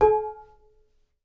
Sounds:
domestic sounds, dishes, pots and pans

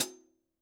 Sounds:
music, hi-hat, musical instrument, percussion, cymbal

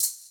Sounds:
music, musical instrument, percussion, rattle (instrument)

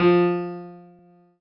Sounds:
keyboard (musical), musical instrument, music, piano

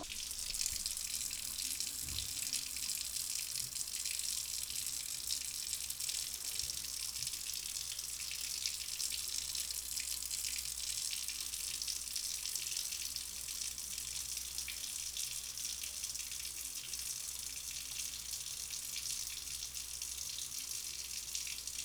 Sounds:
water tap, home sounds

